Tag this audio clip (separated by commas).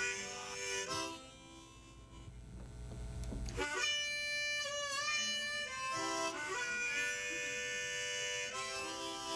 Music